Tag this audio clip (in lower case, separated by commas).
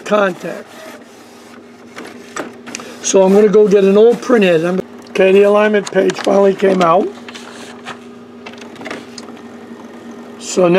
speech